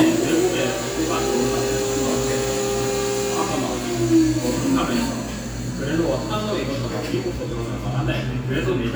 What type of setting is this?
cafe